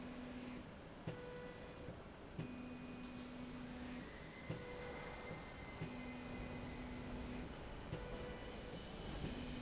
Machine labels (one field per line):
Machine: slide rail